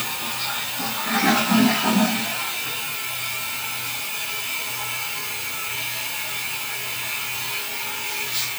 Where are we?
in a restroom